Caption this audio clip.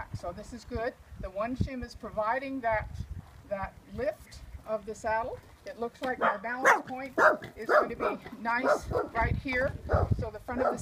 An adult female speaking with some rustling and barking